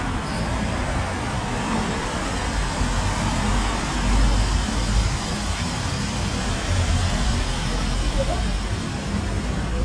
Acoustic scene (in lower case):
street